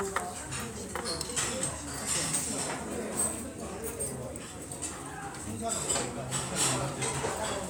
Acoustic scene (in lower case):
restaurant